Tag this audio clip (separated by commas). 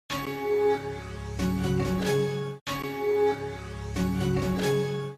Jingle (music), Music